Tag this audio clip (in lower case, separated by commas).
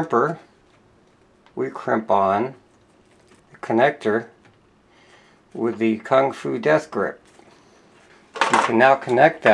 speech, inside a small room